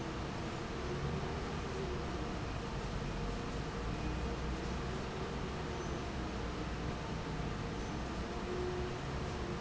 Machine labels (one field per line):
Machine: fan